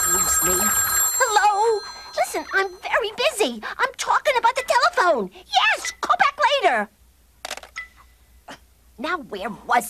People are speaking. A telephone is ringing